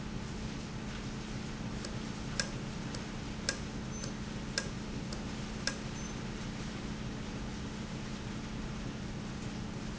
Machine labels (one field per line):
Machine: valve